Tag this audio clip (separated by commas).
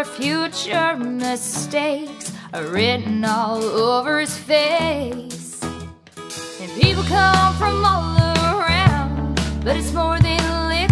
Music